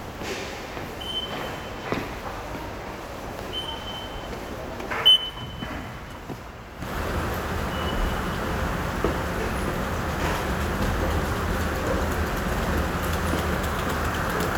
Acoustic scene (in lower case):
subway station